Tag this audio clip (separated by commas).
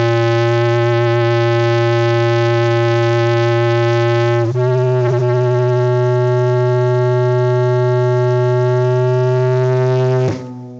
inside a small room, Music